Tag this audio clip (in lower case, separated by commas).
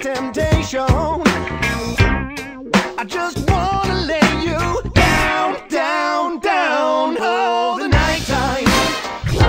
pop music, music